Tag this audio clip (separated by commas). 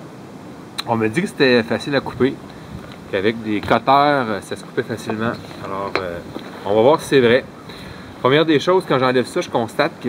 Speech